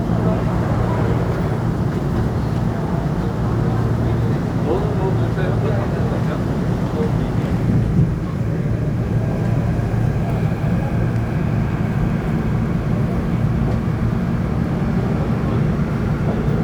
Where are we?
on a subway train